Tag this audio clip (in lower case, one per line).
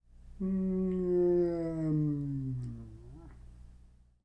human voice